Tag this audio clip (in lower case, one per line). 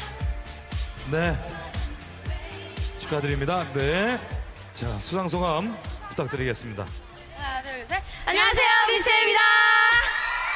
theme music
speech
music